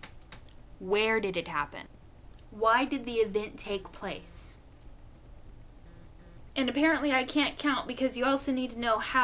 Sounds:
speech, narration

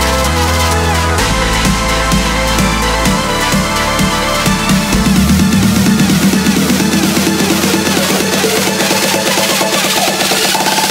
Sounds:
music, electronic music, techno

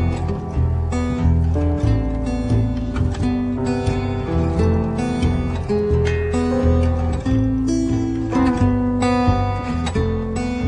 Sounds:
music

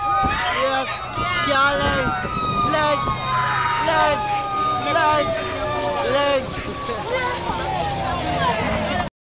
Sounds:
speech, vehicle, fire engine

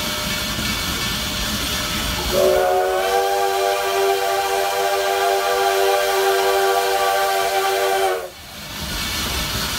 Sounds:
train whistling

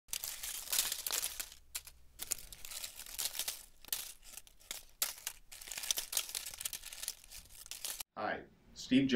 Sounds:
speech

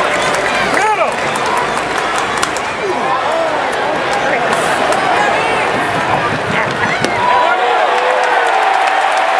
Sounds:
speech

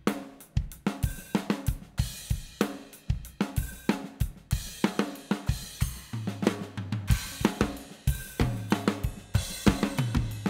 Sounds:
drum, rimshot, percussion, snare drum, bass drum, drum kit

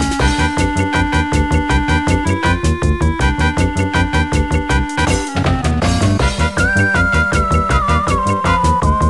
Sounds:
music

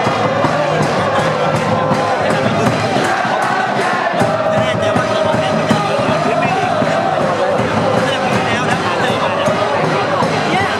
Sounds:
music, speech

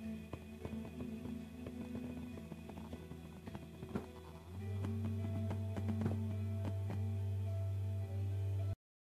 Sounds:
music

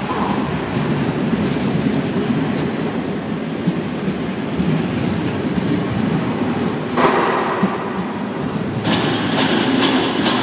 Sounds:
vehicle

